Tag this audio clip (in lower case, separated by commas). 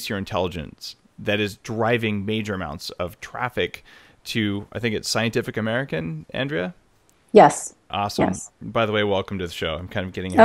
speech